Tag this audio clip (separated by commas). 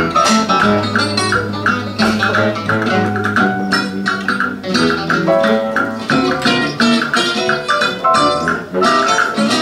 inside a large room or hall, Music